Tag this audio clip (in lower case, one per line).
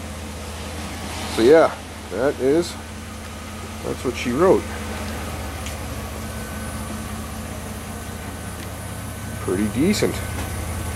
vehicle
car